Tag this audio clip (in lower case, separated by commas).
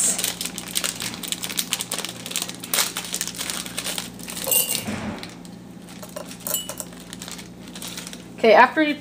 speech